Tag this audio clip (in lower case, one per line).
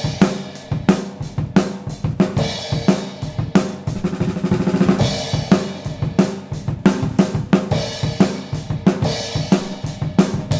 cymbal
snare drum
music
hi-hat